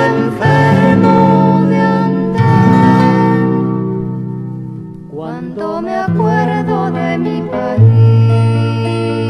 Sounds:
folk music, music

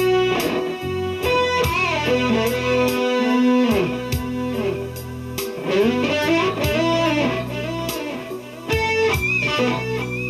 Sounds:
bass guitar, guitar, plucked string instrument, musical instrument, music

